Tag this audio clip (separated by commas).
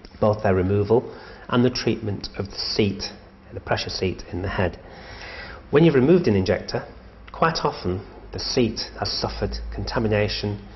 Speech